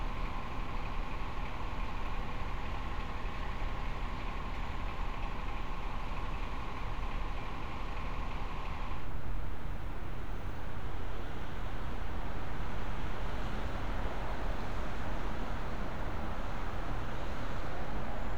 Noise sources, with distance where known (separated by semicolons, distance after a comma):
engine of unclear size